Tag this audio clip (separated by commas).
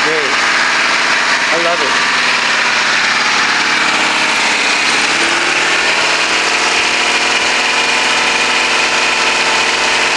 Speech, Vehicle, Engine